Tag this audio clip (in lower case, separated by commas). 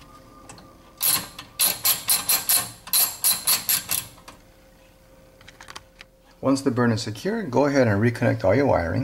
inside a small room, speech